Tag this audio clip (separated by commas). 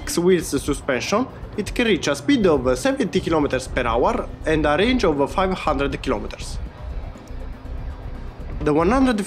firing cannon